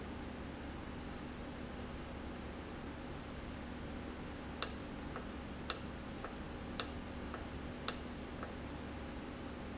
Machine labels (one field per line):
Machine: valve